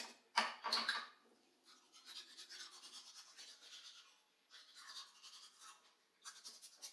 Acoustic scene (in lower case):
restroom